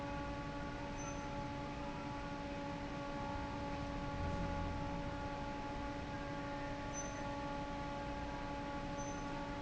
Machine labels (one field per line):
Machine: fan